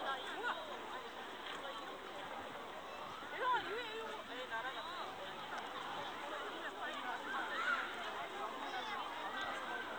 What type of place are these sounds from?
park